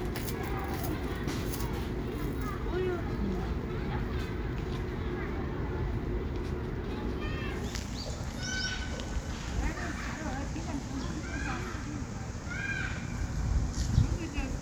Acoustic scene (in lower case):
residential area